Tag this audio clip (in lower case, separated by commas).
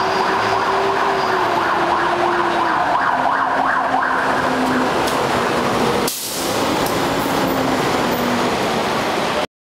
vehicle, fire truck (siren)